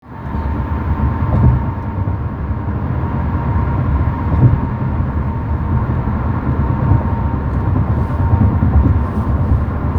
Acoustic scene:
car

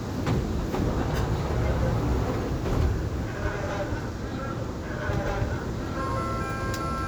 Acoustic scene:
subway train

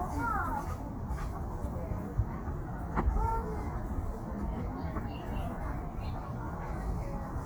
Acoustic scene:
residential area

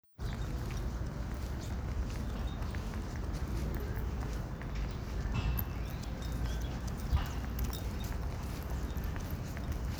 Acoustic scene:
park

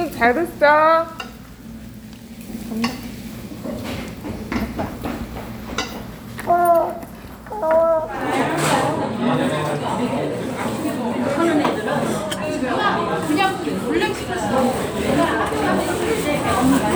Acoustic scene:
restaurant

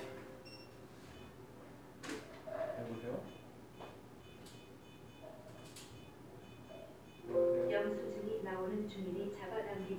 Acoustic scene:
cafe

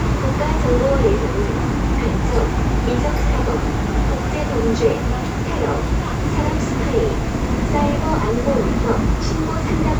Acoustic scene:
subway train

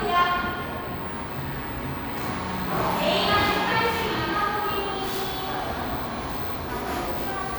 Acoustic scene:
cafe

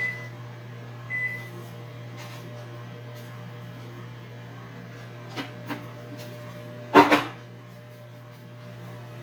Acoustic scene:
kitchen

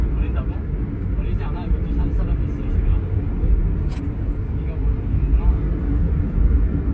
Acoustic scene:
car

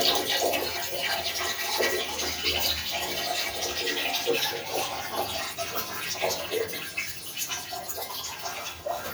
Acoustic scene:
restroom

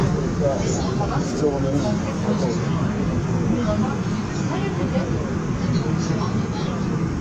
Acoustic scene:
subway train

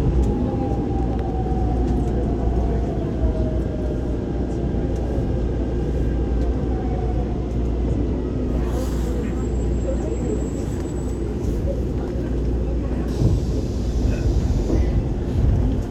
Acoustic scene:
subway train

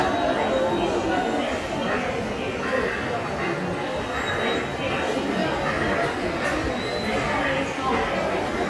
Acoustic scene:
subway station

